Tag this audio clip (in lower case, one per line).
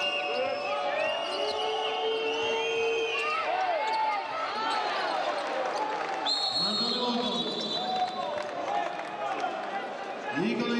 speech